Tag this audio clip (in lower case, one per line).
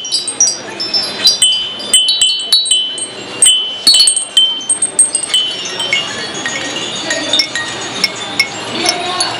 speech
music
wind chime